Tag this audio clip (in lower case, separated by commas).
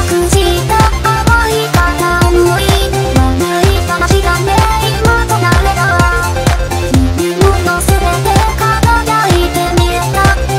music